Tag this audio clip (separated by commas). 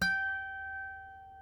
Music, Harp, Musical instrument